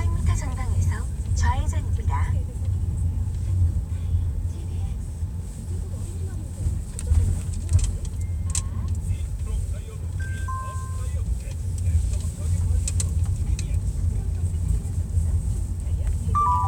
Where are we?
in a car